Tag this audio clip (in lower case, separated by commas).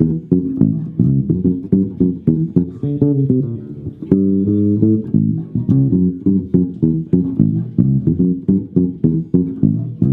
playing double bass